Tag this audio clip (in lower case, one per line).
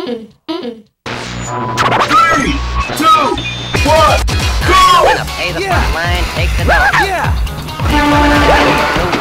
music
speech